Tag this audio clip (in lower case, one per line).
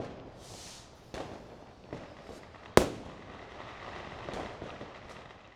fire
explosion
fireworks